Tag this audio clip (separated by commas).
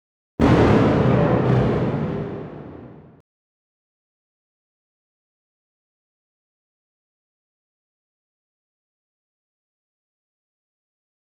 Thunderstorm, Thunder